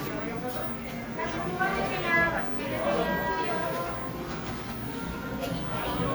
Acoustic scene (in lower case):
cafe